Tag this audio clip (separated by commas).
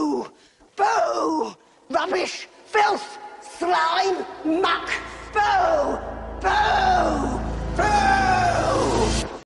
Speech, Music